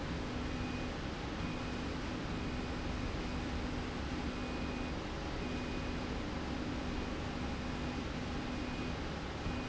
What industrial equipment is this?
slide rail